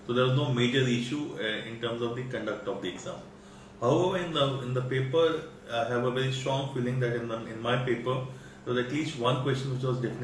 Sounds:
Speech

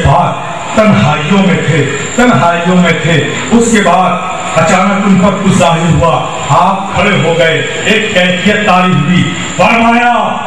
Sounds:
man speaking, Speech

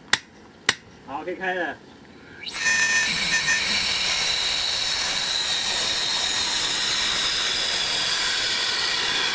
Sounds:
Speech, Spray

